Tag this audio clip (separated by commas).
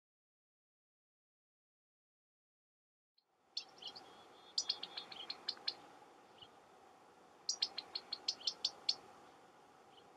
black capped chickadee calling